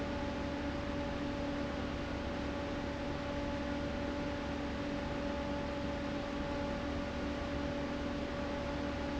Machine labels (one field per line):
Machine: fan